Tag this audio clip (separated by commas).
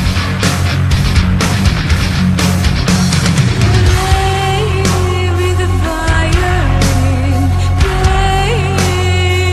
Music